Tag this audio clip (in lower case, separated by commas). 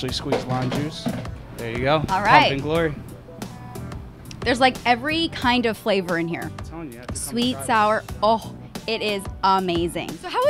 speech, music